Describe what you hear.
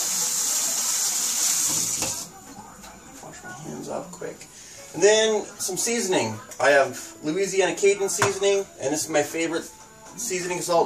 Water pouring from faucet and a man speaking